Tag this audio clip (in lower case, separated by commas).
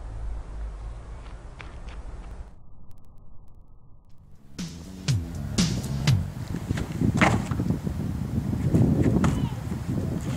music, outside, rural or natural